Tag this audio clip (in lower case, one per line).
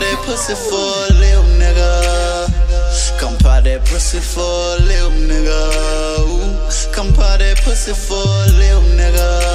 music